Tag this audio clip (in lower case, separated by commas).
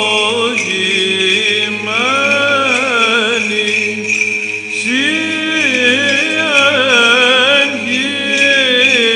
music, vocal music